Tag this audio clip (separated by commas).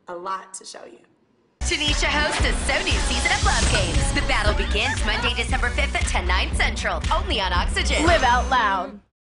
Music, Speech